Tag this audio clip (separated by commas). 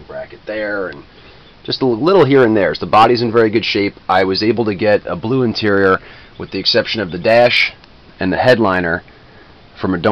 Speech